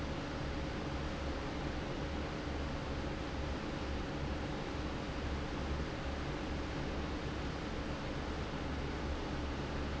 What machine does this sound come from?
fan